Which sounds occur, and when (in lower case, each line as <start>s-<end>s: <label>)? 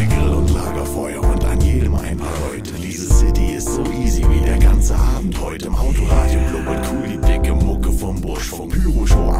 0.0s-9.3s: music
0.0s-9.3s: rapping
5.8s-7.1s: breathing